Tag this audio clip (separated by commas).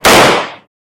Gunshot, Explosion